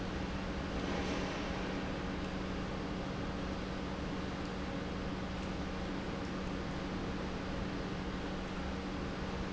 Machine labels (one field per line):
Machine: pump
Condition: normal